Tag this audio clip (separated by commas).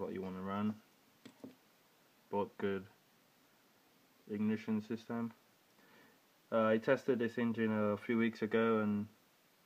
Speech